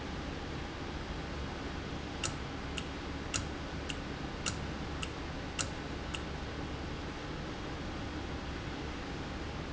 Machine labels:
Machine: valve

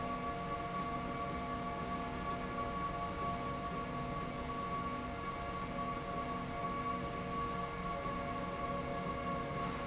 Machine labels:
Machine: slide rail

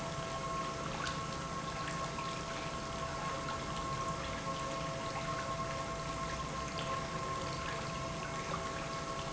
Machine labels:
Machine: pump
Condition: normal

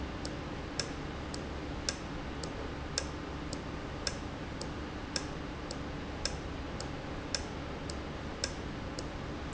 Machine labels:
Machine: valve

